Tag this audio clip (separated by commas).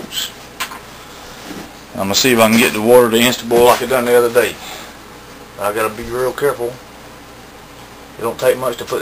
Speech